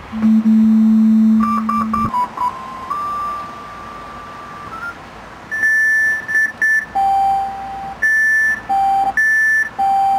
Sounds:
music

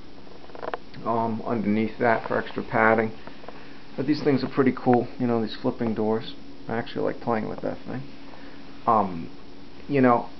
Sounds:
speech

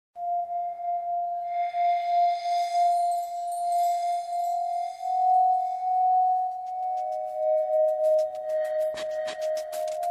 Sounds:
singing bowl
music

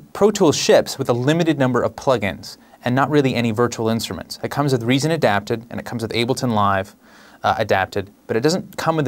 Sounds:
speech

